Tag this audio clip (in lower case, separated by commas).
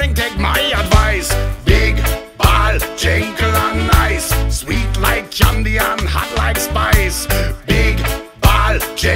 music